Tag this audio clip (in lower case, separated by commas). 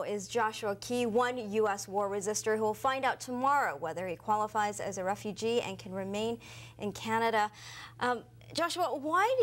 speech